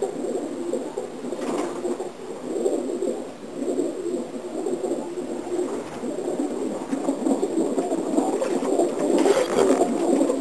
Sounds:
Animal, Bird, Pigeon

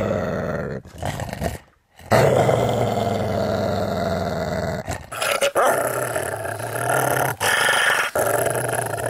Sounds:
dog growling

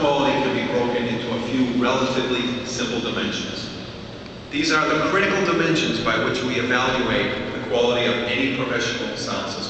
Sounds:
Speech

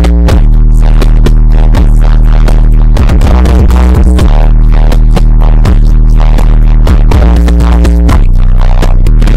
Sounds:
Music

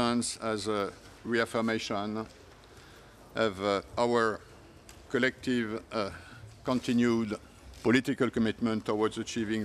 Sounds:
Speech, Male speech

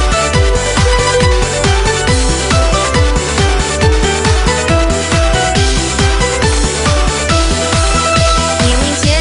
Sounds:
Music

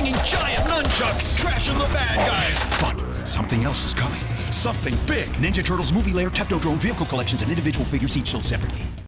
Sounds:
Speech, Music

